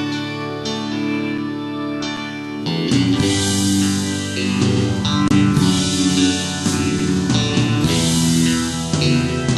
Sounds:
strum
guitar
music
musical instrument
electric guitar
plucked string instrument

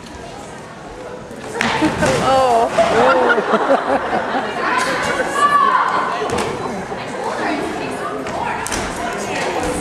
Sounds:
speech

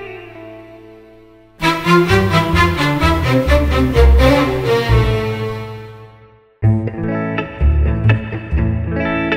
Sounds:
classical music
music

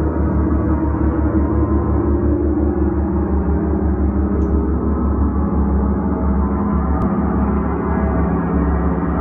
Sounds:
playing gong

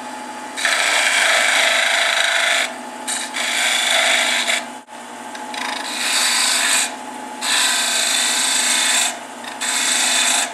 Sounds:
tools

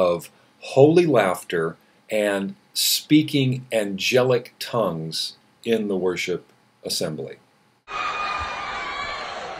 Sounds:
speech
snicker

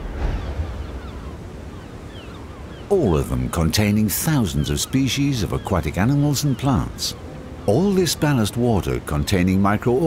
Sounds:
boat
ship

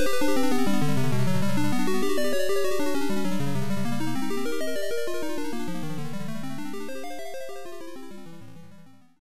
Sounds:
music

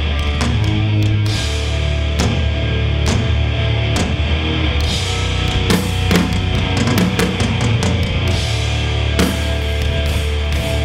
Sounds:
music

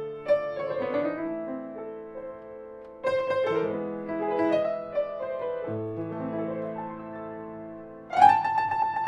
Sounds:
piano
keyboard (musical)
musical instrument

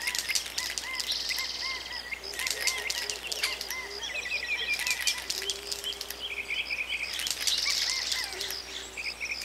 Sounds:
insect
cricket

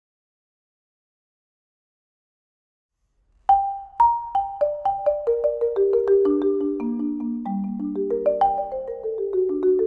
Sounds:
xylophone

